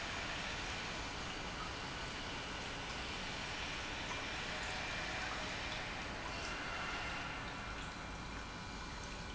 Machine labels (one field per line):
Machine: pump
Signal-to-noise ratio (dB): 0 dB